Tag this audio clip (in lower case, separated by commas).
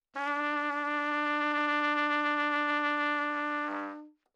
trumpet, music, brass instrument, musical instrument